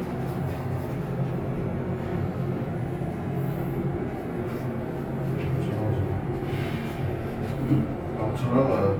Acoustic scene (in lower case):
elevator